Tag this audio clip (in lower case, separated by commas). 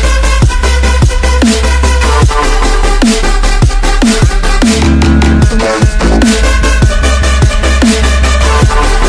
music, dubstep